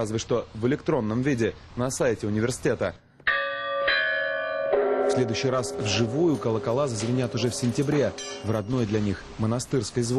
A man speaks followed by a bell ringing and then subsequently talks again